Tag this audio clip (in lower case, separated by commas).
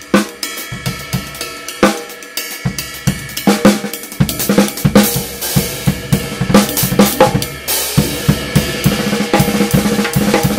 cymbal, musical instrument, drum, percussion, hi-hat, music, drum kit, snare drum